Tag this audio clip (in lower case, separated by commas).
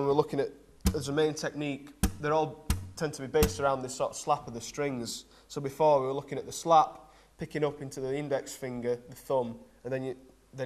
plucked string instrument, musical instrument, guitar, music, speech